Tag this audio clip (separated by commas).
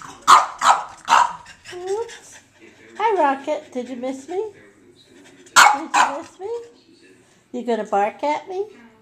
Dog, Animal, Bark, pets, Speech